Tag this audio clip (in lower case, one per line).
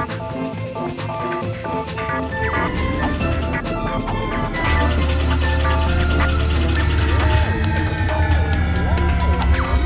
music